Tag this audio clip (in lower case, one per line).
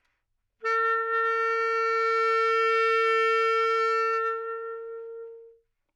music
musical instrument
wind instrument